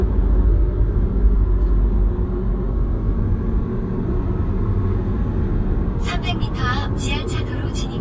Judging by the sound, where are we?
in a car